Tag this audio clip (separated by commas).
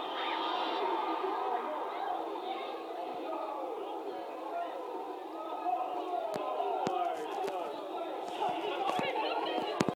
Speech